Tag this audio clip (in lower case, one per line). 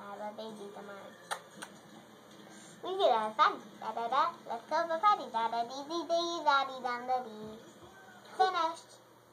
speech